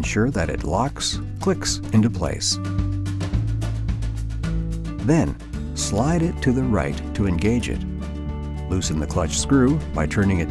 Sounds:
Speech, Music

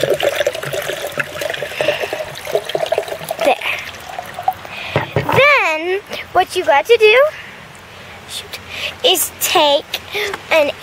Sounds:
Speech, Water, Water tap

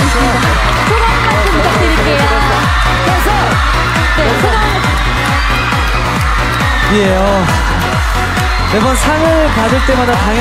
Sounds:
Speech, Music, Dance music

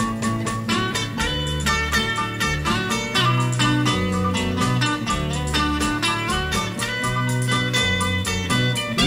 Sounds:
slide guitar, Music

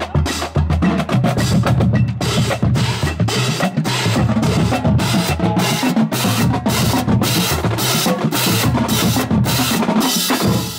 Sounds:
Rimshot, Drum, Bass drum, Percussion, Drum kit, Snare drum

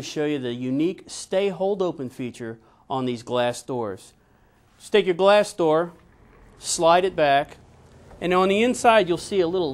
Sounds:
Speech

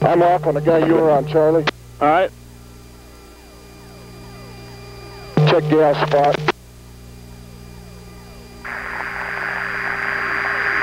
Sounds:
Speech

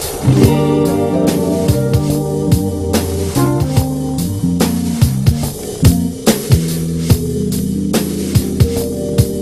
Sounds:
Music

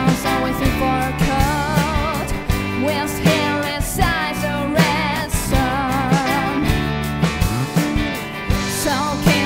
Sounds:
Music

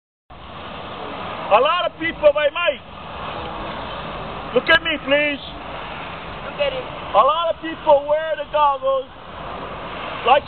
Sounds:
Speech

